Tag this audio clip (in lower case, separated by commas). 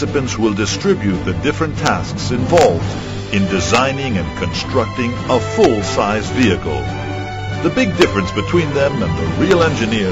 speech, music